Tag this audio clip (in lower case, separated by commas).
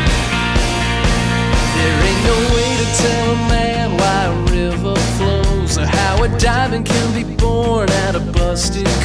music